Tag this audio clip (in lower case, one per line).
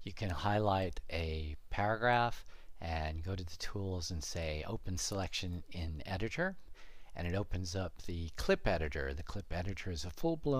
speech